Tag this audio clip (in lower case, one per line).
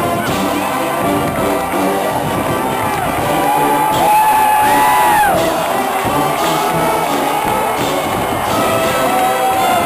cheering
music
speech babble
speech
crowd